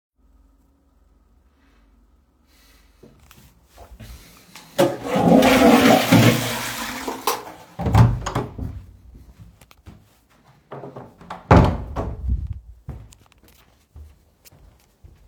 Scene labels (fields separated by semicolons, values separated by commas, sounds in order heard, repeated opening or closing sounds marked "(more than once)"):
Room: bathroom; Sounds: toilet flushing, light switch, door (more than once), footsteps